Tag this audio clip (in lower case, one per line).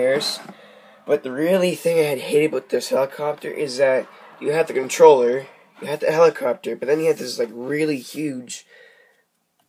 speech